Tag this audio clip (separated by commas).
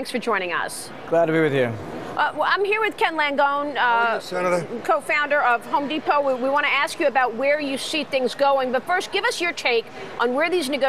Speech